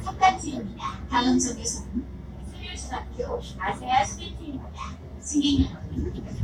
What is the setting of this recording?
bus